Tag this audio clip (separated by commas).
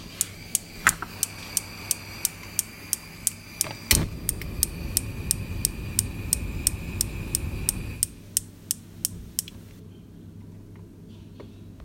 Fire